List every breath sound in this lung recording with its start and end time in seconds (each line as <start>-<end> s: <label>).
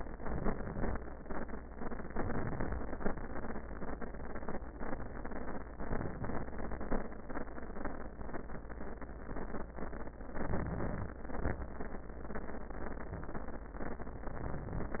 2.16-2.83 s: inhalation
5.84-6.52 s: inhalation
10.46-11.14 s: inhalation
11.27-11.67 s: exhalation
14.35-15.00 s: inhalation